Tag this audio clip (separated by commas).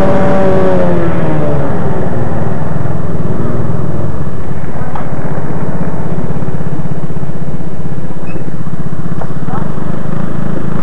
Field recording, Speech, Vehicle, Motorcycle, Motor vehicle (road)